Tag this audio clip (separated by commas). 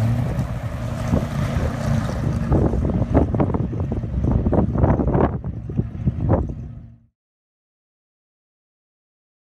Car, outside, rural or natural, Vehicle